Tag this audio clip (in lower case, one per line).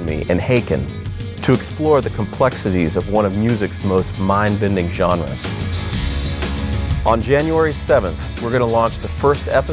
progressive rock
music
rock music
speech
heavy metal